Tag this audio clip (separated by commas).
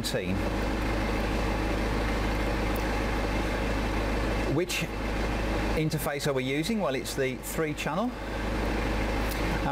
Vehicle, Speech